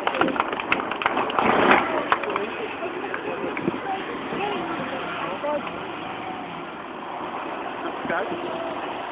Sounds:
Truck, Vehicle, Speech

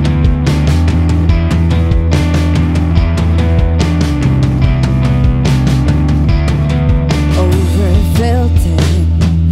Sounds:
Music

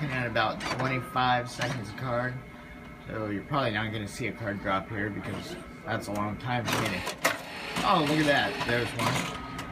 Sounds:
Speech, Printer

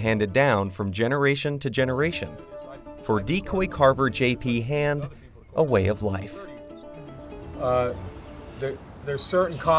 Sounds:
Music, Speech

